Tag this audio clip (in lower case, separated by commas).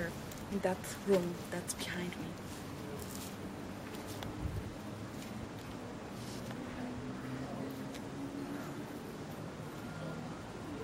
speech